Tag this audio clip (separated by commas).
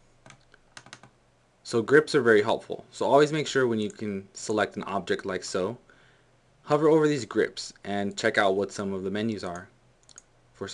Computer keyboard, Speech